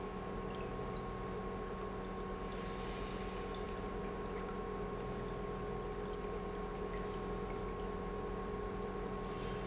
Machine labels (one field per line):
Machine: pump